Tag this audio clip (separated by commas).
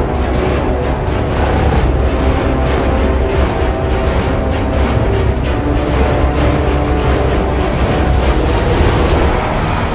Music